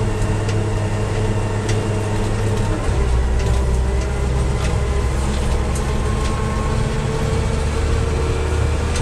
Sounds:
vehicle

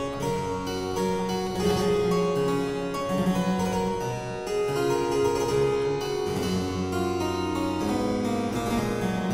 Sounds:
music, playing harpsichord, harpsichord

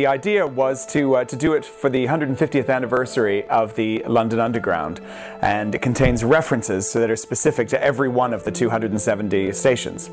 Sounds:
speech, music

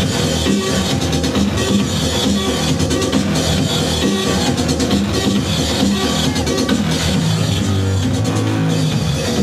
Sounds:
techno, music, electronic music

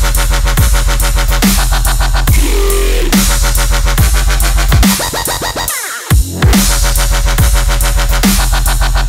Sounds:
music, dubstep, electronic music

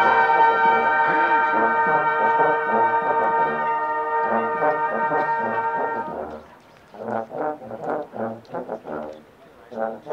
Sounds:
speech, outside, urban or man-made, music

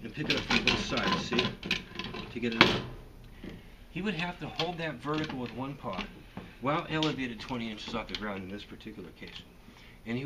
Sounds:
wood, rub

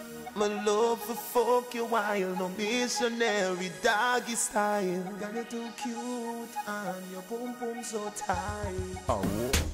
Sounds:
music

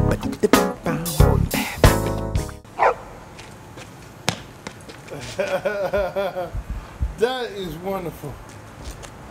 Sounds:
bow-wow, speech, pets, music, animal, dog

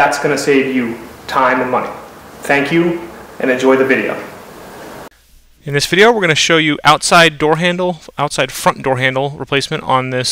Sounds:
speech

